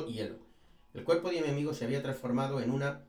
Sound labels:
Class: speech